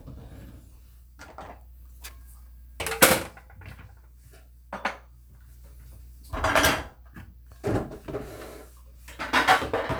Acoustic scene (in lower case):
kitchen